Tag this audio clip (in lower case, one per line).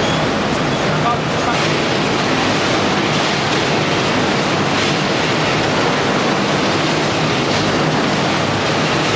speech